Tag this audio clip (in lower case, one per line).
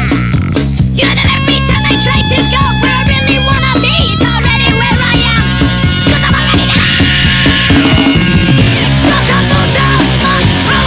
music
funny music